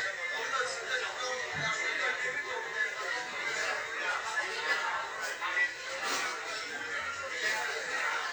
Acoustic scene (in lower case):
crowded indoor space